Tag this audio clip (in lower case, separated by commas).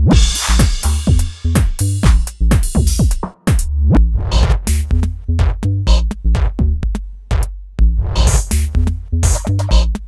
drum kit, music